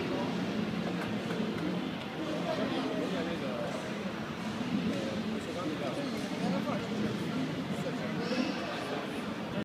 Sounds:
speech

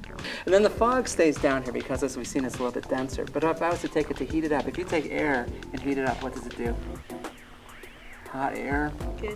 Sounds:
music
speech

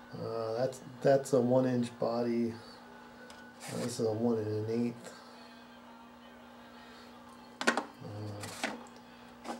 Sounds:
speech

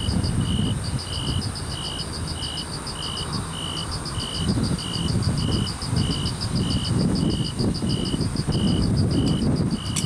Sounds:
cricket chirping

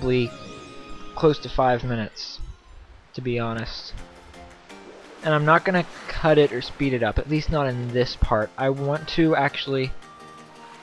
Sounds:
music
speech

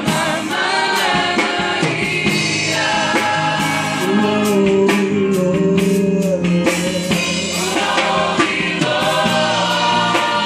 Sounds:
choir
singing

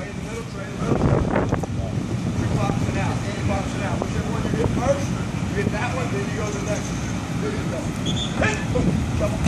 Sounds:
speech

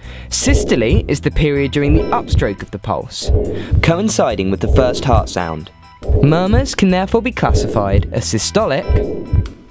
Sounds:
music
speech

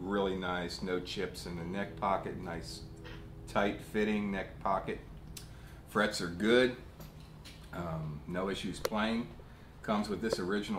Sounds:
speech

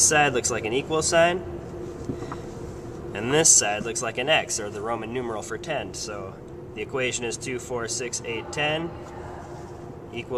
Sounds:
inside a small room
speech

